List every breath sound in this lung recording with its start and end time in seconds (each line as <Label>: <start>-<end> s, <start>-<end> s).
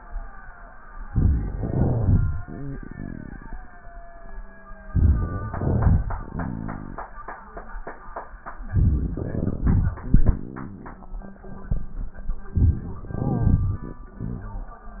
Inhalation: 1.06-1.58 s, 4.93-5.53 s, 8.60-9.61 s, 12.49-13.04 s
Exhalation: 1.57-2.94 s, 5.53-7.11 s, 9.62-10.88 s, 13.05-14.26 s
Crackles: 1.57-2.94 s, 8.60-9.61 s, 9.62-10.88 s, 12.49-13.02 s, 13.05-14.26 s